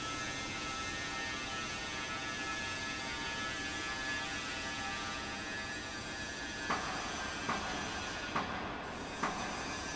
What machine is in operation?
fan